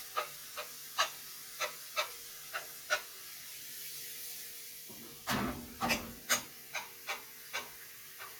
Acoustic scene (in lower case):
kitchen